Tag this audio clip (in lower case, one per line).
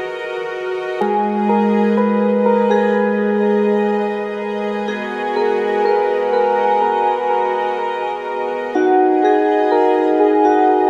music